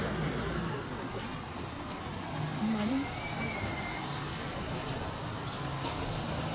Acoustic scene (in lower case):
residential area